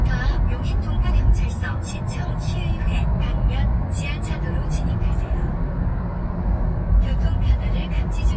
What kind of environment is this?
car